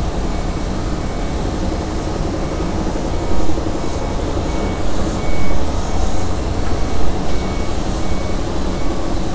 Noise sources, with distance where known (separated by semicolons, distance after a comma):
large-sounding engine, near; reverse beeper, near